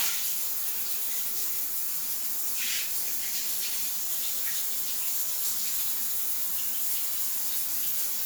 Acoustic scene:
restroom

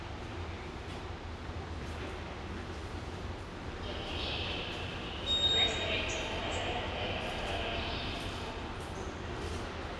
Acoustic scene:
subway station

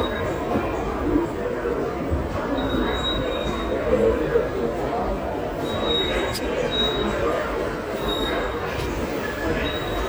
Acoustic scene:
subway station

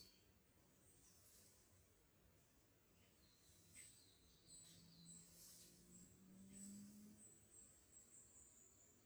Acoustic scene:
park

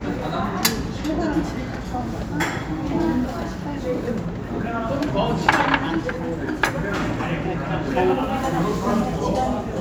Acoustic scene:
restaurant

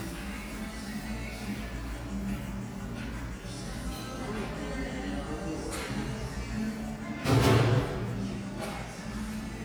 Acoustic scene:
cafe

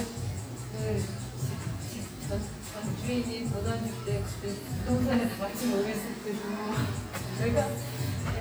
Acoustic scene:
cafe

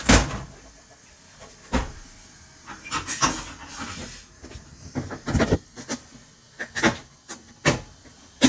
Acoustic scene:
kitchen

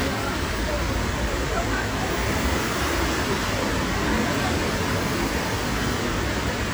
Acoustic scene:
street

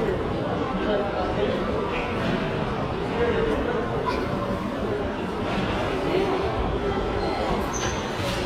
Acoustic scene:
crowded indoor space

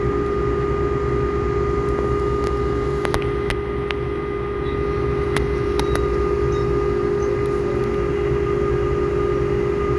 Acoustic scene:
subway train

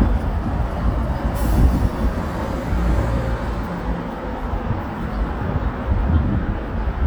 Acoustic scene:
street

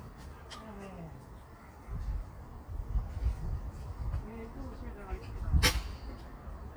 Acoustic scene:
park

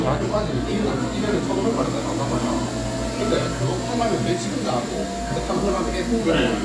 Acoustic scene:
cafe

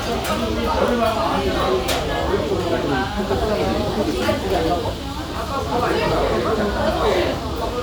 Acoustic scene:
restaurant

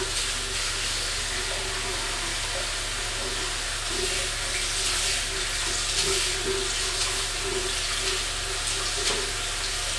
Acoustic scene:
restroom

